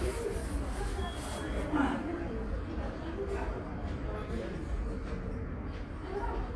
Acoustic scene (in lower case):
subway station